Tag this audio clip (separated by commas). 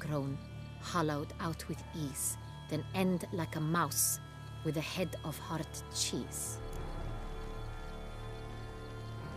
Music, Speech